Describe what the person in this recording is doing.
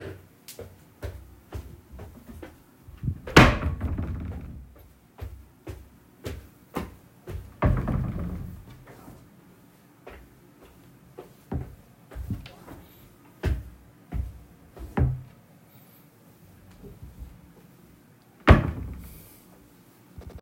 I stepped around my bedroom during the process I opend and closed the drawer a couple of times, using differs levels of strength.